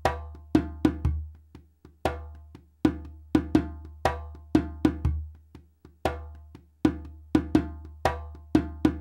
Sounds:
playing djembe

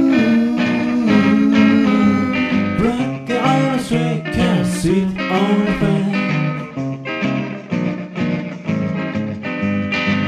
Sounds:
music

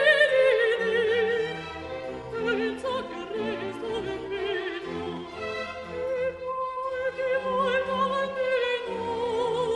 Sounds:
musical instrument, orchestra, opera, fiddle, music, bowed string instrument

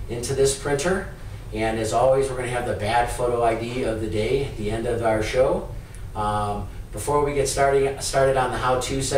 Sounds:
speech

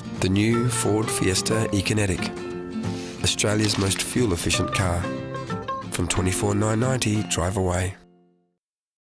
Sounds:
music, speech

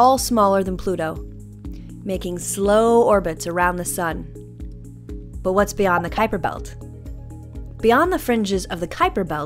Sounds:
music, speech

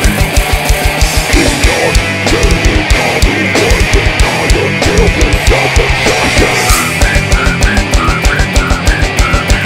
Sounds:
angry music, music

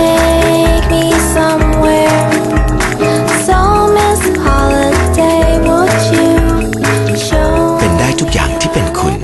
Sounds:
music, speech

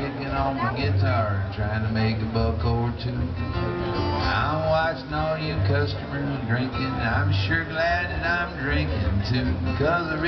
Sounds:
music, speech, male singing

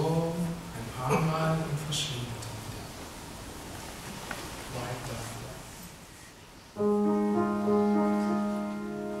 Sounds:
speech, music

